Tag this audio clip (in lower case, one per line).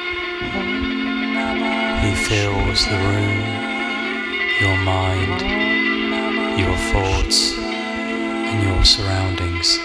soul music
music